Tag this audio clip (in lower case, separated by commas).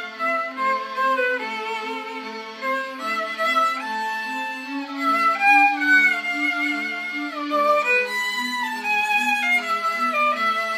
musical instrument, violin, music